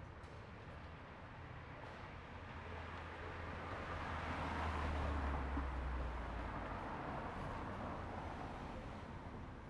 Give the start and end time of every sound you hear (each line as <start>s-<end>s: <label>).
2.8s-9.4s: car
2.8s-9.4s: car wheels rolling